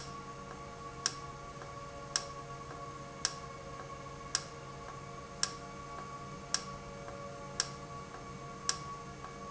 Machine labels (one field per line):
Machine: valve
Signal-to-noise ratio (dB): 0 dB